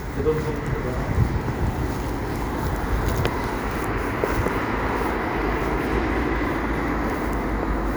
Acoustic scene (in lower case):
street